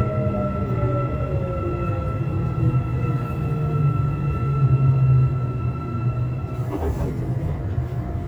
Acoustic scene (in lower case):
subway train